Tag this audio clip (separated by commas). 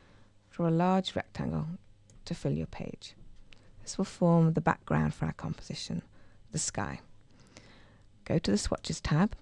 Speech